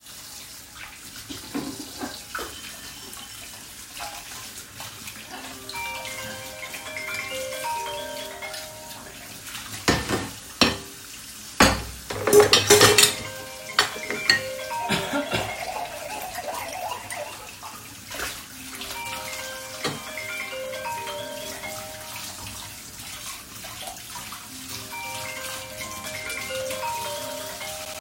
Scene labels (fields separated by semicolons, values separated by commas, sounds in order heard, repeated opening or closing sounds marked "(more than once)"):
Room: kitchen; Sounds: running water, cutlery and dishes, phone ringing